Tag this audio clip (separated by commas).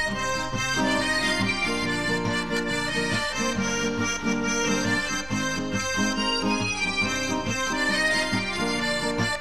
Music